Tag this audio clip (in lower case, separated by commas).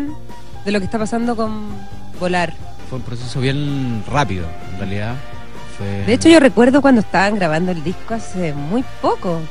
speech, music